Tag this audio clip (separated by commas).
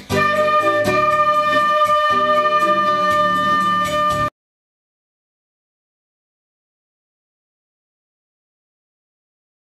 Musical instrument, Flute, Music, woodwind instrument